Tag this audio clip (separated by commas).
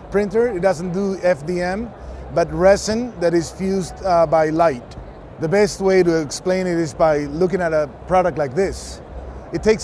Speech